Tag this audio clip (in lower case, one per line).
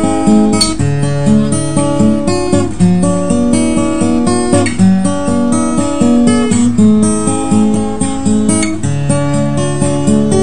guitar
music
plucked string instrument
acoustic guitar
playing acoustic guitar
musical instrument